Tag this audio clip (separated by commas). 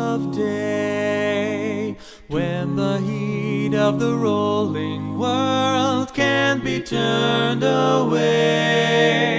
A capella, Music